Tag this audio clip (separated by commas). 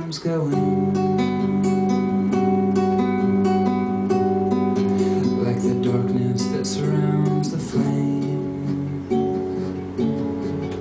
Music, Male singing